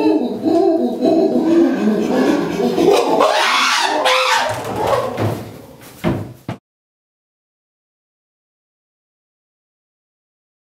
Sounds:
chimpanzee pant-hooting

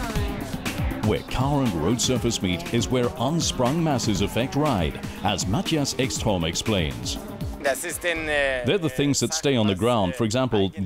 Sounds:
music
speech

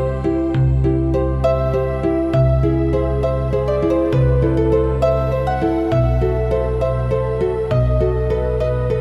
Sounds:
music
classical music

